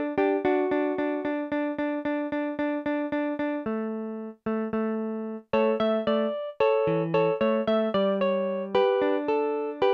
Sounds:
Guitar, Acoustic guitar, Musical instrument, Christmas music, Music, Plucked string instrument

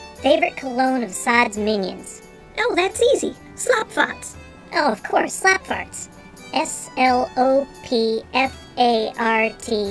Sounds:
Music, Speech

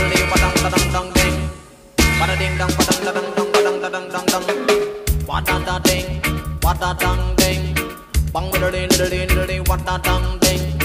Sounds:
Music, Reggae

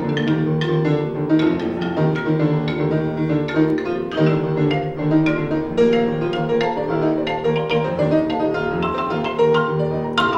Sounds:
Music, Tubular bells

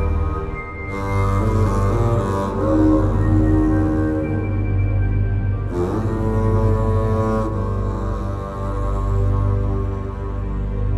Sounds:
Music, Double bass

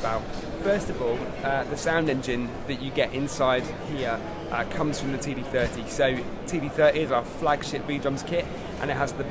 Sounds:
Speech

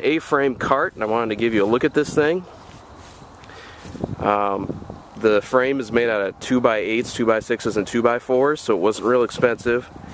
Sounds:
Speech

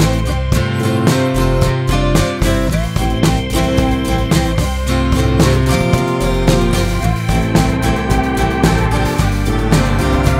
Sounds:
Music

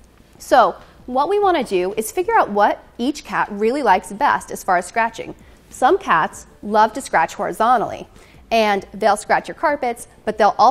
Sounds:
Speech

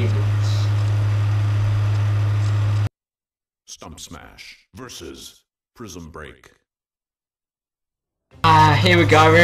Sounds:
Speech

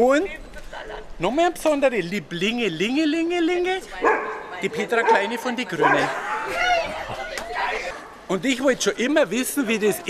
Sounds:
Speech

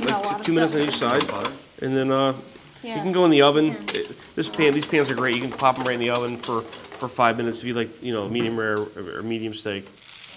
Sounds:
inside a small room, Speech

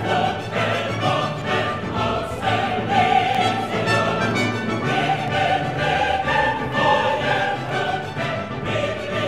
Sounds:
Music

